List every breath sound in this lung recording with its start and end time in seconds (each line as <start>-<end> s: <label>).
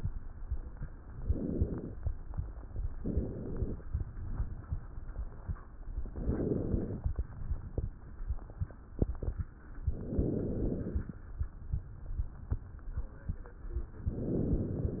1.23-1.96 s: inhalation
2.98-3.81 s: inhalation
6.09-7.06 s: inhalation
9.90-11.20 s: inhalation
14.12-15.00 s: inhalation